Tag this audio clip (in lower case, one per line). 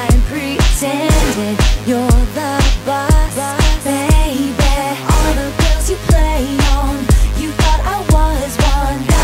music
rhythm and blues
jazz